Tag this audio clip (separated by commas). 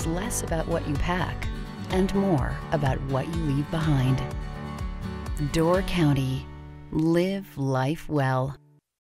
Music, Speech